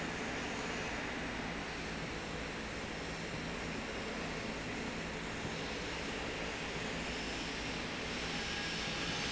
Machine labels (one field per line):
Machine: slide rail